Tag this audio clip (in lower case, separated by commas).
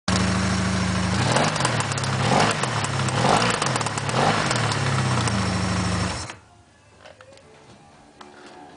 vehicle, engine, accelerating, medium engine (mid frequency), music